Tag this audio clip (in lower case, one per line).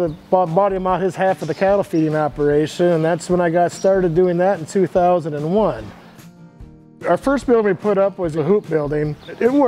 music
speech